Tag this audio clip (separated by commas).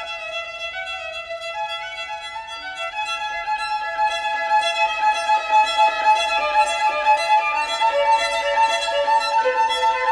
fiddle, Music, Musical instrument